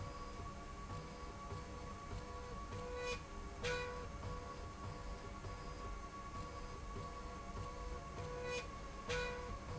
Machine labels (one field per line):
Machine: slide rail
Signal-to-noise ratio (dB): 6 dB